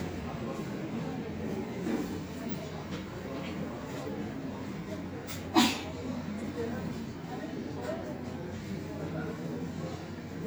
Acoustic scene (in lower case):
subway station